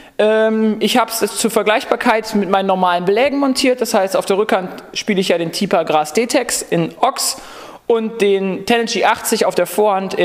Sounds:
Speech

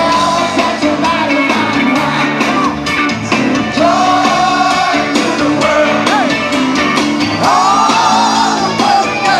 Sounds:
Music

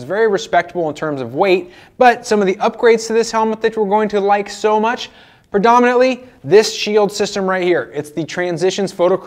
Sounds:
Speech

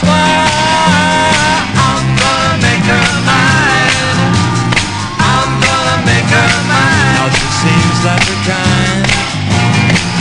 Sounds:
Music

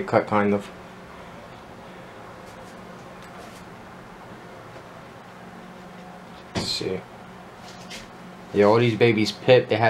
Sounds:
inside a small room, Speech

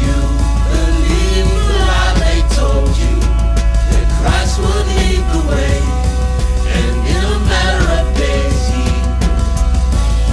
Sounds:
Music

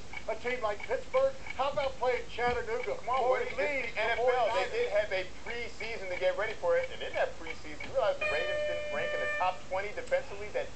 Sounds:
Speech

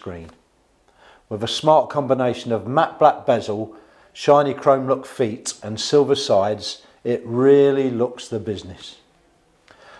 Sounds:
Speech

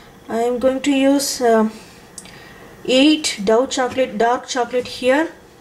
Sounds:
Speech

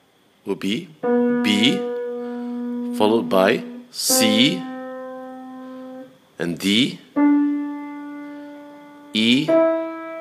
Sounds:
Speech, Harpsichord, Music

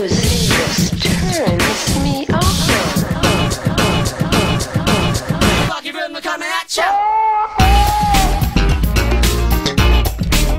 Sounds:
Music

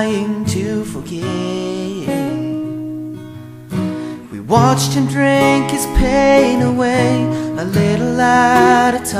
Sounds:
Lullaby, Music

